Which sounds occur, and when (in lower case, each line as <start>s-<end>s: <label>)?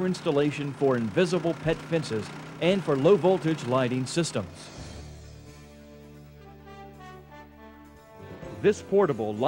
0.0s-2.3s: male speech
0.0s-5.0s: lawn mower
2.6s-4.5s: male speech
4.5s-9.4s: music
8.6s-9.4s: male speech